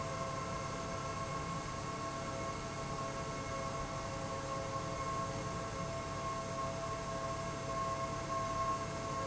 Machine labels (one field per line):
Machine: pump